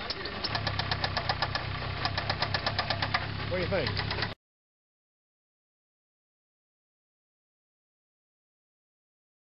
An engine tapping and idling, a man speaking